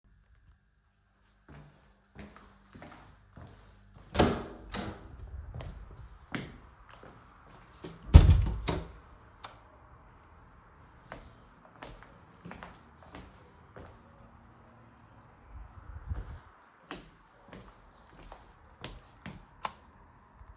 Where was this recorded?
bedroom